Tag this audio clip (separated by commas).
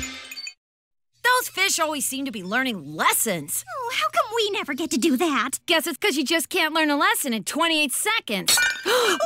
Speech